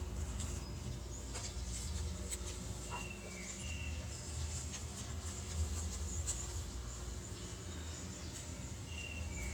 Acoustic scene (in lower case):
park